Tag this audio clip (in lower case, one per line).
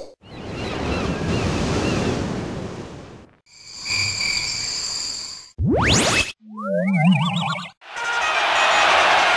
sound effect